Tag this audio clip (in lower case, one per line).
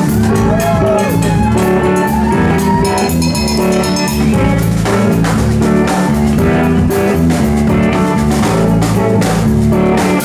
music